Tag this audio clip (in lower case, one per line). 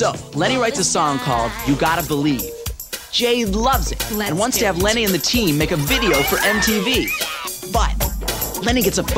speech
music